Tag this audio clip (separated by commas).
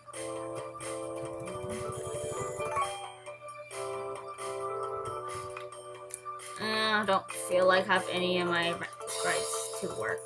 Speech, Music